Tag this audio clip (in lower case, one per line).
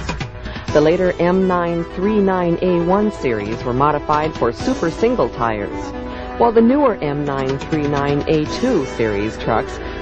music
speech